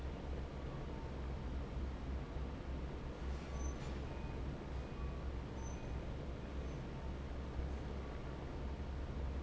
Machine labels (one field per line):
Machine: fan